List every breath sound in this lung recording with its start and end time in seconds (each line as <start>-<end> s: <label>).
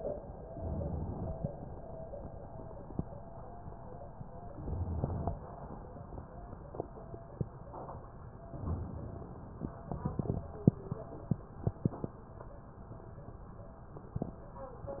0.44-1.31 s: inhalation
4.50-5.37 s: inhalation
8.52-9.70 s: inhalation